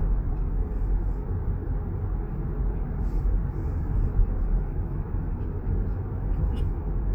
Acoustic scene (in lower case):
car